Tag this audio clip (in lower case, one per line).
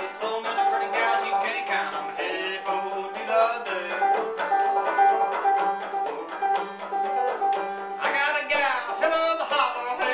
music
banjo